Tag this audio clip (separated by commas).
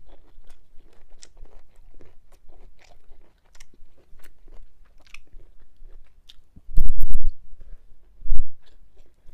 Chewing